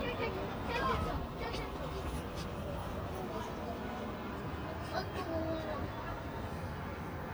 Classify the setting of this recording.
residential area